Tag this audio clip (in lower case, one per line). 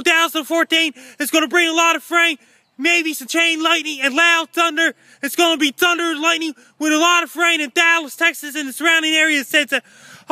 speech